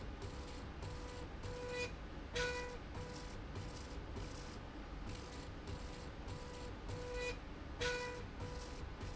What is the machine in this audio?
slide rail